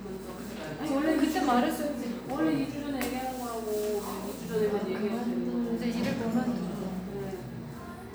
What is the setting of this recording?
cafe